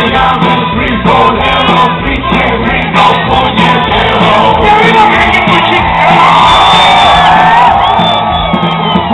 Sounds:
crowd, cheering

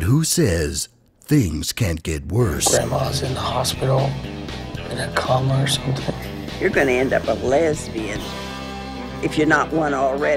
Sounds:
music, speech

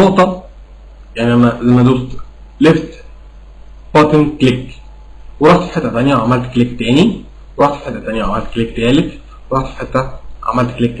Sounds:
speech

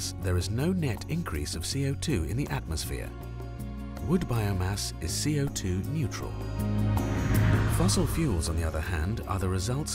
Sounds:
music, speech

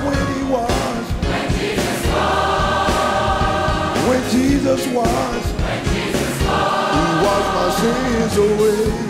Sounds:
music

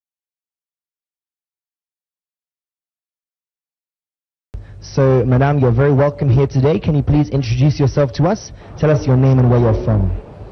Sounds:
speech

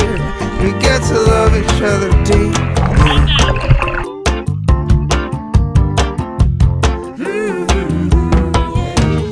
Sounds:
speech, music

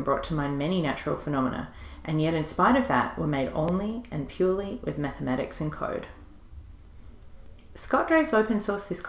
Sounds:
speech

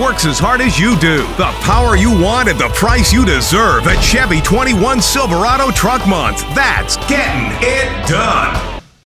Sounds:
speech, music

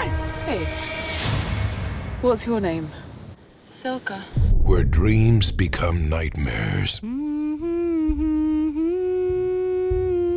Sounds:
music, speech

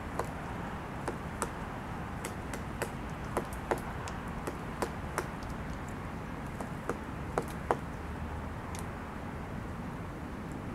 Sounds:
woodpecker pecking tree

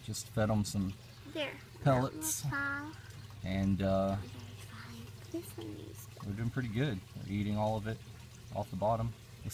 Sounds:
speech

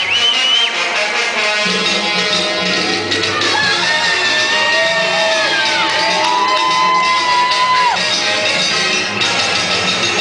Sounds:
inside a large room or hall, shout, music

